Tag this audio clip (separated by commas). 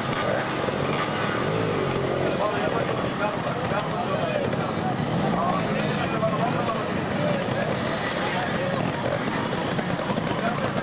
Speech